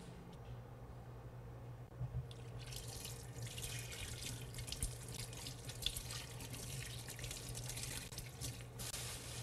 Water is pouring and gurgling, then a brush is scrubbing